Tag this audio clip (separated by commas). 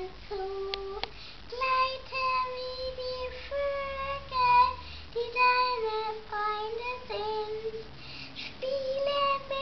Speech